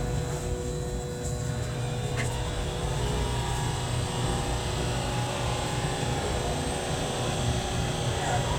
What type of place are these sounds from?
subway train